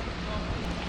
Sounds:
vehicle, boat

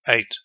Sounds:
human voice, man speaking, speech

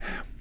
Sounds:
whispering, human voice

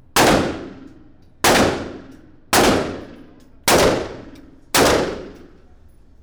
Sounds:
gunfire, explosion

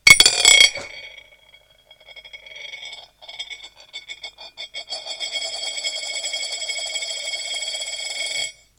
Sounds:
coin (dropping), domestic sounds

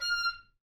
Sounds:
musical instrument, wind instrument, music

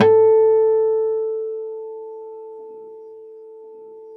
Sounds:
plucked string instrument, guitar, acoustic guitar, music, musical instrument

